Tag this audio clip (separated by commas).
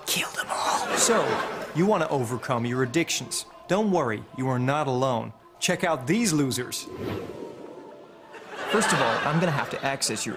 Speech